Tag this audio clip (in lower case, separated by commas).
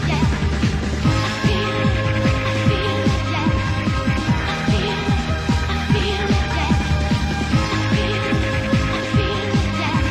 trance music, techno, house music, electronic music, electronic dance music, music